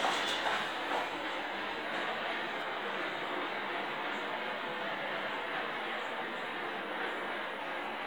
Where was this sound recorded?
in an elevator